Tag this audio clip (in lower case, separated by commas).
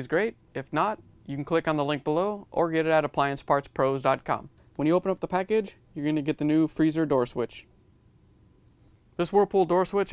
speech